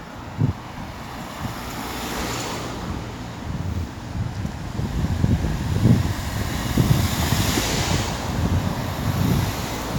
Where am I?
on a street